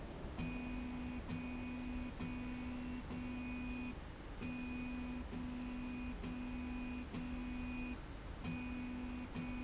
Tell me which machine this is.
slide rail